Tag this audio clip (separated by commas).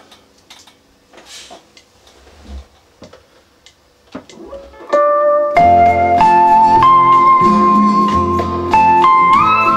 slide guitar, Music